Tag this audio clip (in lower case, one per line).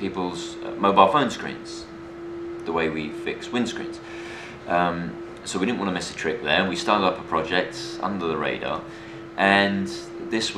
speech